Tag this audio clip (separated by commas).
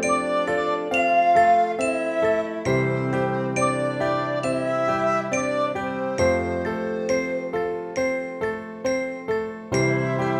Flute, Music